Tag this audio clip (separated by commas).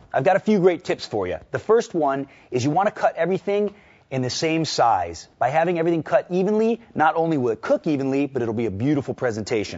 Speech